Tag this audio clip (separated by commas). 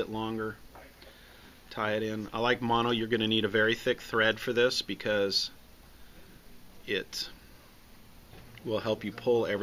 Speech